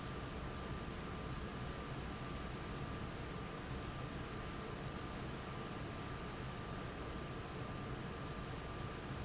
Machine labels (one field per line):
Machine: fan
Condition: abnormal